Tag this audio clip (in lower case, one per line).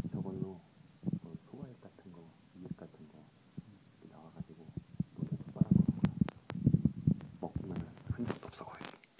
speech